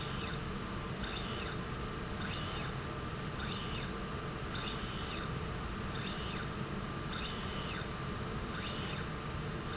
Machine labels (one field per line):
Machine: slide rail